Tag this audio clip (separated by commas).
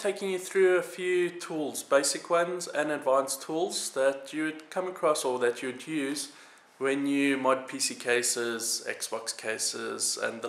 Speech